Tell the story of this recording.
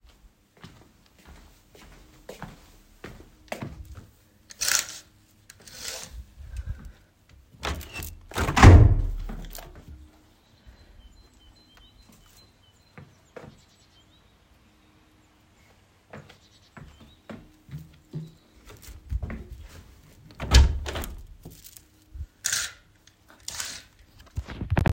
I walk to the window, open it, hear birds outside, and close it again.